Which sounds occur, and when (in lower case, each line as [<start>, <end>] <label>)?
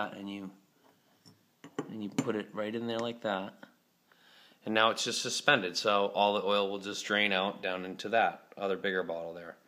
[0.00, 0.38] male speech
[0.00, 9.65] background noise
[1.15, 1.34] glass
[1.54, 1.83] glass
[1.70, 3.66] male speech
[2.00, 2.28] glass
[2.83, 3.09] generic impact sounds
[3.52, 3.75] generic impact sounds
[4.03, 4.54] breathing
[4.05, 4.20] generic impact sounds
[4.57, 8.37] male speech
[8.52, 9.65] male speech